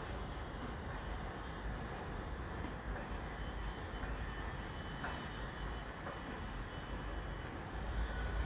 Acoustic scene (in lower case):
residential area